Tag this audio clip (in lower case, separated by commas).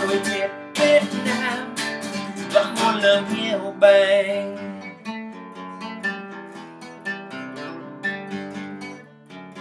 music